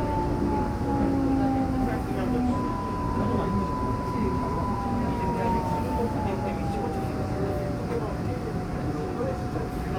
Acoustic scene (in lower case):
subway train